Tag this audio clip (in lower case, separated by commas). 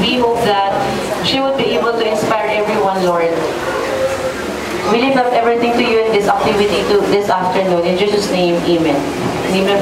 speech